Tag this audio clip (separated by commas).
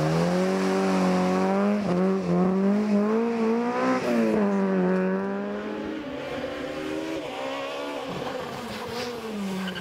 auto racing, Vehicle, Speech, Car, outside, rural or natural